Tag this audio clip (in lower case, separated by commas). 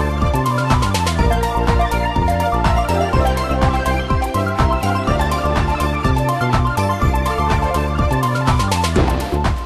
theme music, music